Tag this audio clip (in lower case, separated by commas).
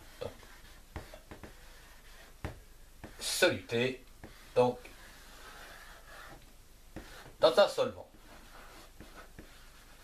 speech